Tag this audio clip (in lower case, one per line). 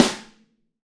percussion
musical instrument
drum
snare drum
music